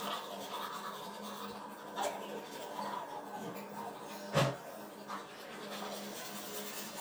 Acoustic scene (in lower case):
restroom